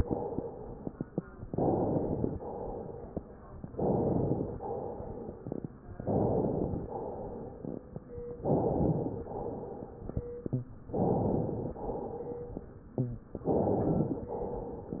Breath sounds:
1.50-2.39 s: inhalation
2.37-3.41 s: exhalation
3.71-4.56 s: inhalation
4.59-5.71 s: exhalation
5.98-6.83 s: inhalation
6.83-7.82 s: exhalation
8.39-9.24 s: inhalation
9.25-10.29 s: exhalation
10.52-10.67 s: rhonchi
10.96-11.81 s: inhalation
11.82-12.80 s: exhalation
12.97-13.20 s: rhonchi
13.45-14.30 s: inhalation

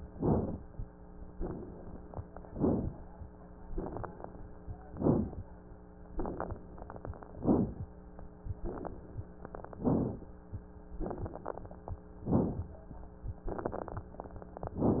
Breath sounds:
0.10-0.57 s: inhalation
1.27-2.27 s: exhalation
1.27-2.27 s: crackles
2.50-3.04 s: inhalation
3.73-4.46 s: exhalation
3.73-4.46 s: crackles
4.91-5.44 s: inhalation
6.15-6.63 s: exhalation
6.15-6.63 s: crackles
7.40-7.93 s: inhalation
8.61-9.28 s: exhalation
8.61-9.28 s: crackles
9.79-10.32 s: inhalation
11.08-11.99 s: exhalation
11.08-11.99 s: crackles
12.25-12.78 s: inhalation
13.45-14.16 s: exhalation
13.45-14.16 s: crackles

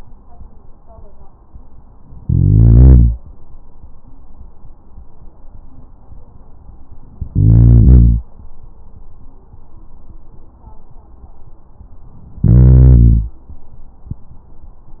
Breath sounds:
2.22-3.18 s: inhalation
7.33-8.29 s: inhalation
12.40-13.36 s: inhalation

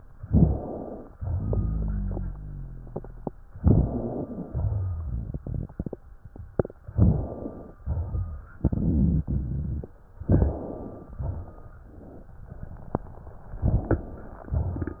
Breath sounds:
0.21-1.14 s: inhalation
1.17-3.50 s: rhonchi
3.58-4.49 s: inhalation
3.92-4.49 s: wheeze
4.50-5.39 s: rhonchi
4.50-6.01 s: exhalation
4.50-6.02 s: crackles
6.93-7.80 s: inhalation
7.83-8.59 s: exhalation
10.28-11.21 s: inhalation
11.21-11.85 s: exhalation

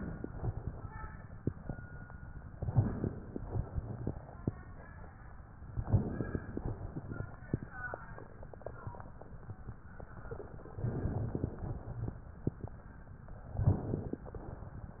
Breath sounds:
2.60-3.47 s: crackles
2.62-3.49 s: inhalation
3.55-4.42 s: exhalation
3.55-4.42 s: crackles
5.83-6.70 s: inhalation
5.83-6.70 s: crackles
6.70-7.48 s: exhalation
10.76-11.54 s: inhalation
10.76-11.54 s: crackles
11.54-12.22 s: exhalation
13.55-14.23 s: inhalation
13.55-14.23 s: crackles

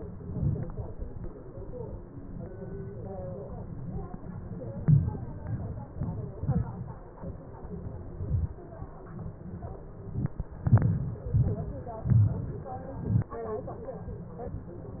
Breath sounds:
10.68-11.13 s: inhalation
11.34-11.78 s: exhalation
12.11-12.71 s: inhalation
13.02-13.39 s: exhalation

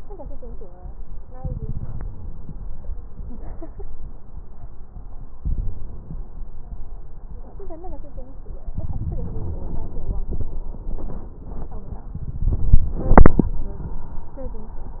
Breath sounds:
1.38-2.93 s: inhalation
1.38-2.93 s: crackles
5.38-6.46 s: inhalation
8.71-10.13 s: inhalation

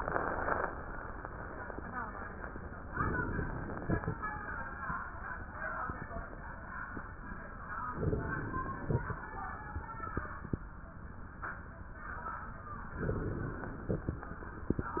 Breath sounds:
2.96-4.02 s: inhalation
2.96-4.02 s: crackles
7.95-9.01 s: inhalation
7.95-9.01 s: crackles
13.00-14.06 s: inhalation
13.00-14.06 s: crackles

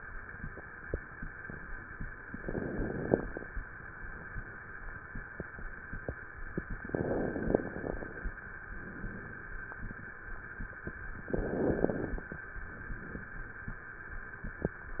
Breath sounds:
2.33-3.40 s: inhalation
2.33-3.40 s: crackles
6.83-8.35 s: inhalation
6.83-8.35 s: crackles
11.33-12.41 s: inhalation
11.33-12.41 s: crackles

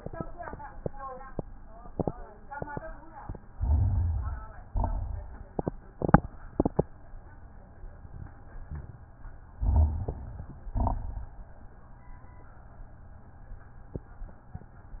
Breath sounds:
3.51-4.63 s: inhalation
3.57-4.42 s: rhonchi
4.69-5.45 s: exhalation
4.69-5.45 s: crackles
9.56-10.19 s: rhonchi
9.56-10.66 s: inhalation
10.68-11.44 s: exhalation
10.68-11.44 s: crackles

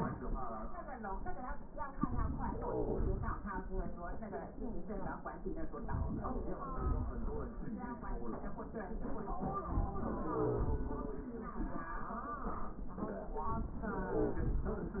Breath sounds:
No breath sounds were labelled in this clip.

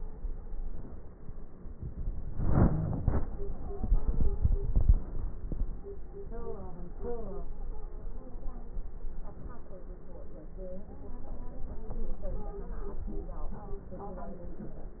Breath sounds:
2.21-3.33 s: inhalation
2.21-3.33 s: crackles
3.14-4.82 s: stridor
7.42-8.93 s: stridor
11.65-13.17 s: stridor

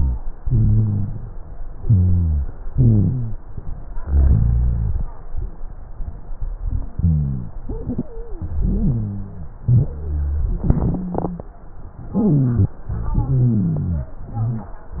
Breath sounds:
0.38-1.37 s: inhalation
0.38-1.37 s: rhonchi
1.78-2.47 s: exhalation
1.78-2.47 s: rhonchi
2.69-3.38 s: inhalation
2.69-3.38 s: rhonchi
4.00-4.99 s: exhalation
4.00-4.99 s: rhonchi
6.98-7.55 s: rhonchi
8.03-8.52 s: wheeze
8.60-9.45 s: inhalation
8.60-9.45 s: wheeze
9.70-10.55 s: exhalation
9.70-10.55 s: rhonchi
10.66-11.52 s: wheeze
12.16-12.73 s: inhalation
12.16-12.73 s: wheeze
12.88-14.18 s: exhalation
12.88-14.18 s: rhonchi
14.31-14.81 s: inhalation
14.31-14.81 s: wheeze

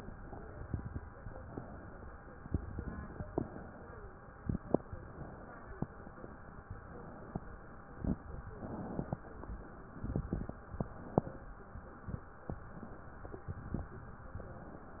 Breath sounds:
0.01-1.11 s: inhalation
1.11-1.98 s: exhalation
2.37-3.25 s: inhalation
3.25-4.08 s: exhalation
4.92-5.75 s: inhalation
6.61-7.44 s: inhalation
8.40-9.23 s: inhalation
9.84-10.67 s: inhalation
10.66-11.50 s: inhalation
12.64-13.47 s: inhalation

